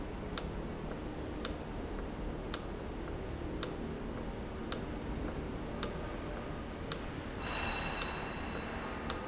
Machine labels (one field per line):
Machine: valve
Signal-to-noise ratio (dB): -6 dB